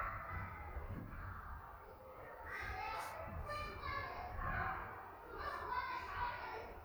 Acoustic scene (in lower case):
crowded indoor space